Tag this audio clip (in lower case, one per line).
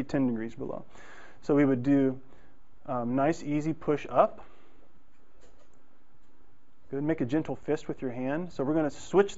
silence
speech